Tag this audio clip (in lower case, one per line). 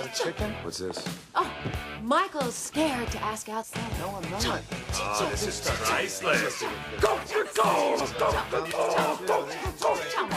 music
speech